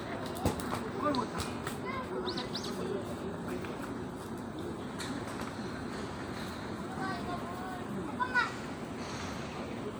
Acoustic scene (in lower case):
park